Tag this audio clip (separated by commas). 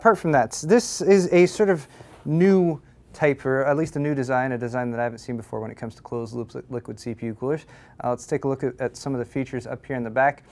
Speech